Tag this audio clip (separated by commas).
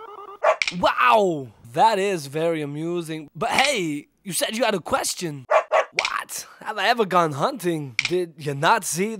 Speech, Bow-wow